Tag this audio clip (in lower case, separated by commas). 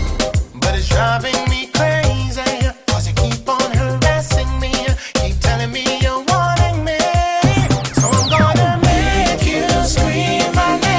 afrobeat, music of africa, music, reggae